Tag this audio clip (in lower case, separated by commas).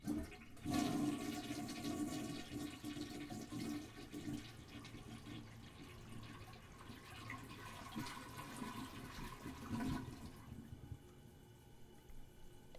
toilet flush, domestic sounds